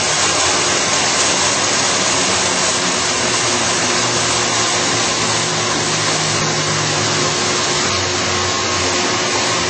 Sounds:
Tools, Power tool

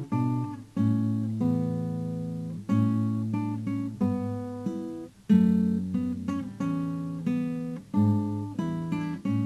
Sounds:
Acoustic guitar, Musical instrument, Plucked string instrument, Guitar, Music

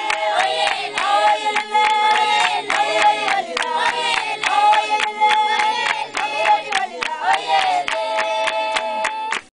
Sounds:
Choir, Female singing

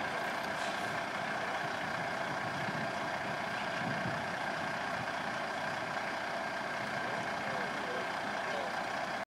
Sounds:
Speech, Vehicle, Truck

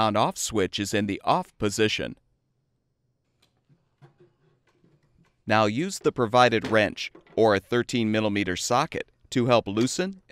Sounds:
Speech

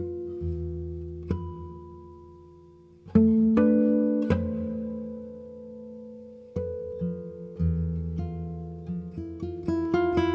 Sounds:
Electric guitar, Music, Guitar, Plucked string instrument, Musical instrument

